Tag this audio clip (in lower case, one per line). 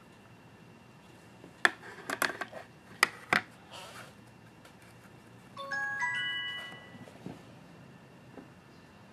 chime